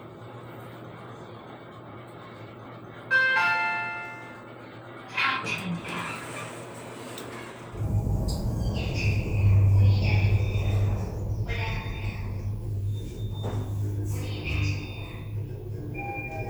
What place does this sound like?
elevator